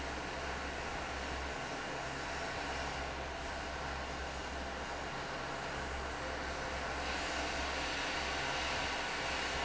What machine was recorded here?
fan